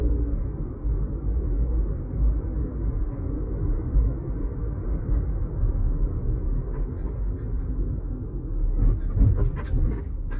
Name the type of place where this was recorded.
car